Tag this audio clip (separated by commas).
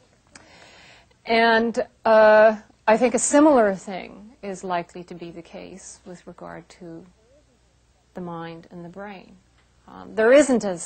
Speech